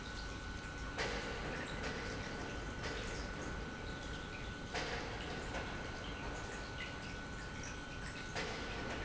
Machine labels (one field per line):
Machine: pump